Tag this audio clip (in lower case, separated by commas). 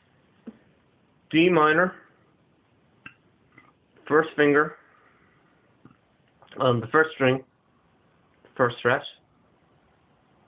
speech, inside a small room